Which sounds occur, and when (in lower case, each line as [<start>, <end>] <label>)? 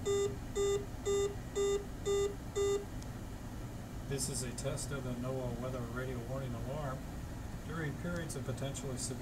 [0.00, 9.21] mechanisms
[0.06, 0.31] bleep
[0.59, 0.87] bleep
[1.06, 1.36] bleep
[1.57, 1.89] bleep
[2.07, 2.38] bleep
[2.58, 2.86] bleep
[3.02, 3.09] tick
[4.12, 7.02] man speaking
[7.65, 9.21] man speaking
[8.14, 8.23] tick